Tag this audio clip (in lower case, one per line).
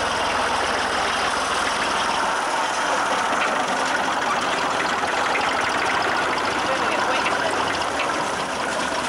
vehicle
speech